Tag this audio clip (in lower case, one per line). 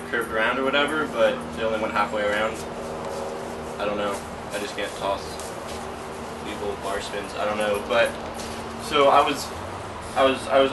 speech